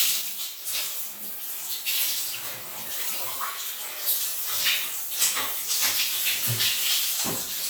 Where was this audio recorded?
in a restroom